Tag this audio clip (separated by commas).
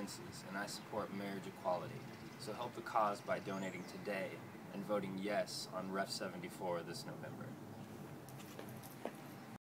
Speech